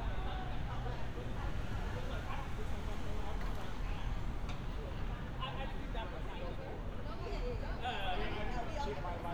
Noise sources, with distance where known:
person or small group talking, near

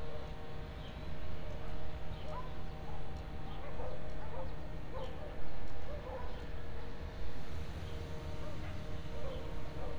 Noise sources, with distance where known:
dog barking or whining

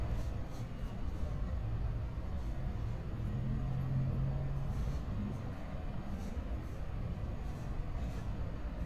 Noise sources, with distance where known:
engine of unclear size

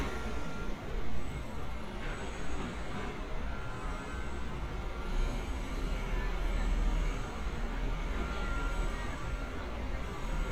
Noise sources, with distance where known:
medium-sounding engine, far; car horn, far; reverse beeper, far; person or small group talking, far

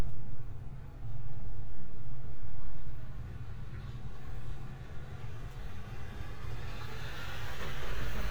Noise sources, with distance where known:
engine of unclear size

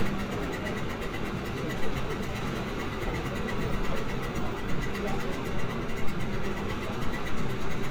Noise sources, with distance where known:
unidentified impact machinery; unidentified human voice

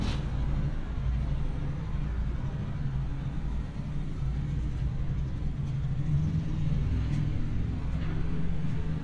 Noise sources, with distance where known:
engine of unclear size, far

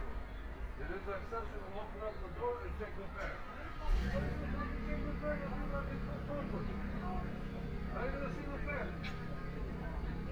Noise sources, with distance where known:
medium-sounding engine; person or small group talking, near

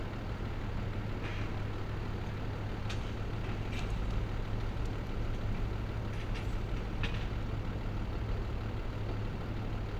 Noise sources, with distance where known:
medium-sounding engine, near

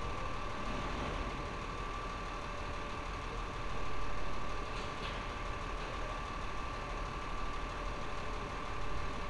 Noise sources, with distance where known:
engine of unclear size, near

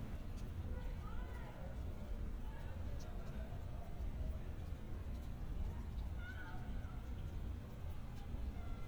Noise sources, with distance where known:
person or small group talking, far; person or small group shouting, far

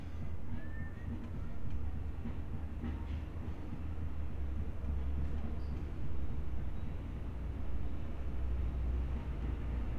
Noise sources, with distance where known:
engine of unclear size; music from an unclear source, far

